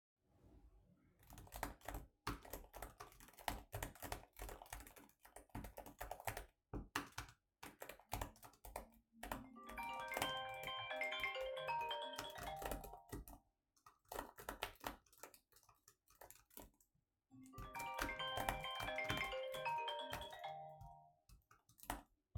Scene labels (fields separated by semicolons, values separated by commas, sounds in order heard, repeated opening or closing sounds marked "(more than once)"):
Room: office; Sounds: keyboard typing, phone ringing